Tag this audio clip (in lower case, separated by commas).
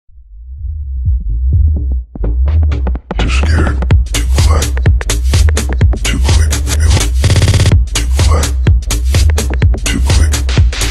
music, electronic music, electronic dance music